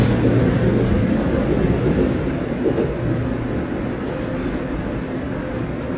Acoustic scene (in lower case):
subway station